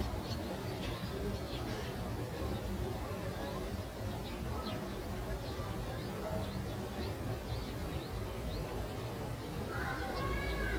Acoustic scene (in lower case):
residential area